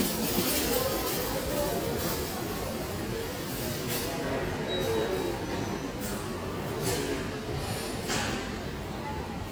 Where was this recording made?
in a crowded indoor space